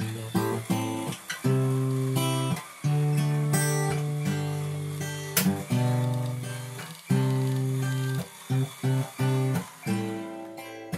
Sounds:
music

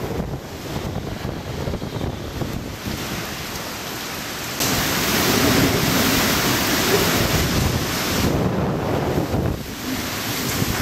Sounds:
wind, outside, rural or natural, white noise

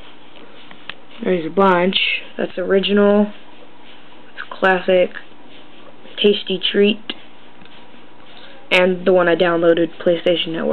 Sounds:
speech

